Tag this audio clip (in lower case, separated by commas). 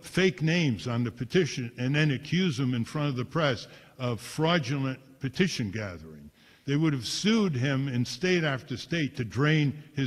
speech